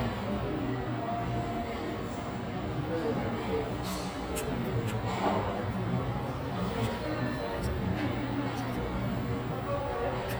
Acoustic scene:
cafe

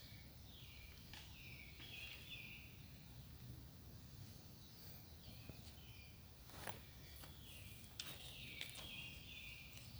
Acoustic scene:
park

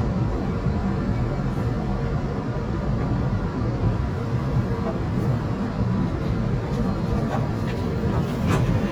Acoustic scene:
subway train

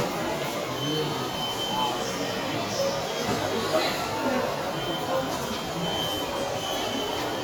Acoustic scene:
subway station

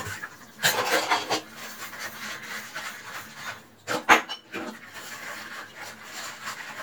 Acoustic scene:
kitchen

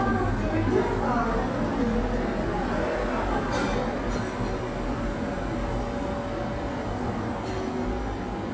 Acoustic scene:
cafe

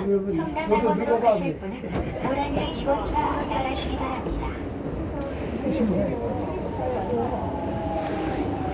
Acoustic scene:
subway train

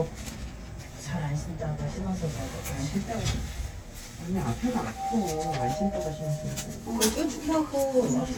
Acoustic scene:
elevator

